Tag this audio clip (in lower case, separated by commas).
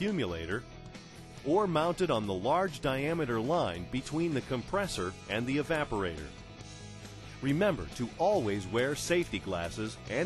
speech, music